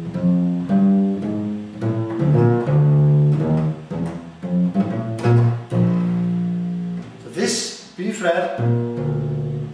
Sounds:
playing double bass

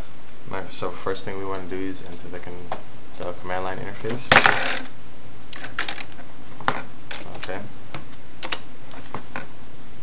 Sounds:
speech

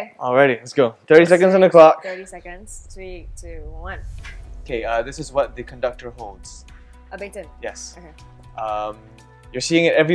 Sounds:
speech, music

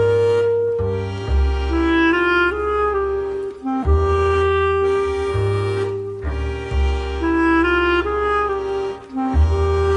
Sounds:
music, woodwind instrument

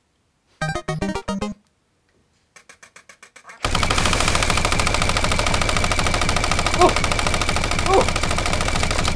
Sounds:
machine gun shooting

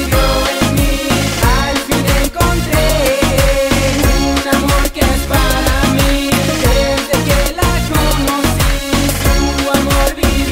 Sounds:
music, exciting music, independent music

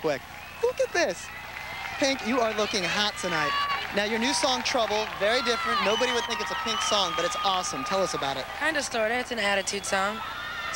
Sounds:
speech

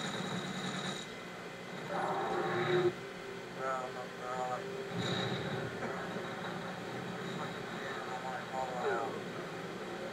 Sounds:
speech

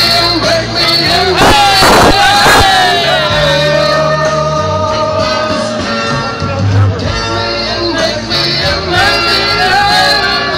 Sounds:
music, inside a large room or hall

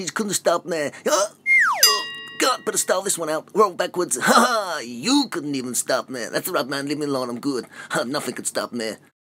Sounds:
speech

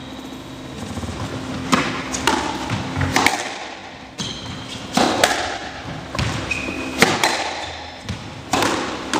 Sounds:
playing squash

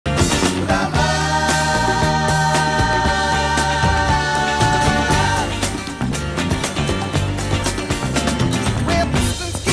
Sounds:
music

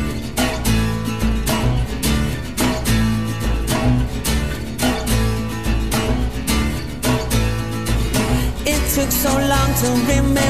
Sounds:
pop music, music

